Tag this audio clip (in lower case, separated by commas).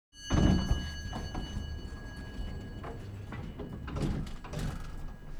domestic sounds, door, sliding door